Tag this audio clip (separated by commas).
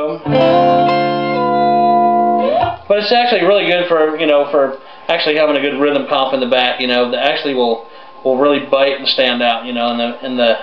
inside a small room, Musical instrument, Blues, Music, Plucked string instrument, Guitar, Speech